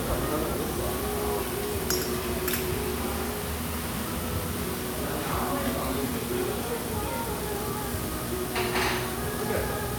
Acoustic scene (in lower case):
restaurant